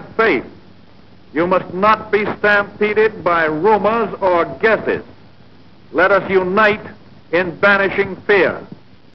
A man giving a radio speech